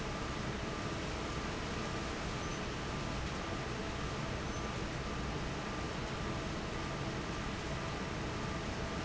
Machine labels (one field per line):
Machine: fan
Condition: normal